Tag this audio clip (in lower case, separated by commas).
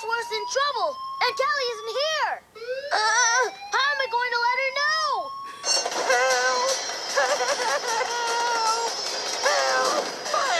music, speech